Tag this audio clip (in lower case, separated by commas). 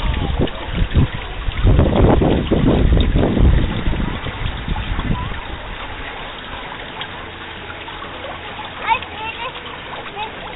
speech